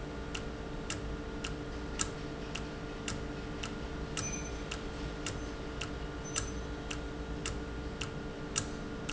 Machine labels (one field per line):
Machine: valve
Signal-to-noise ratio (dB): -6 dB